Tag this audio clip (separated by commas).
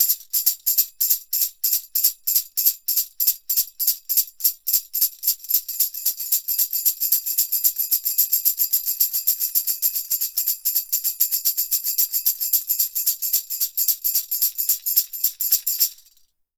Music, Musical instrument, Tambourine, Percussion